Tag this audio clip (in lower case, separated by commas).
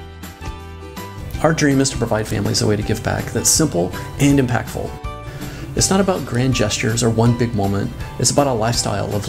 music, speech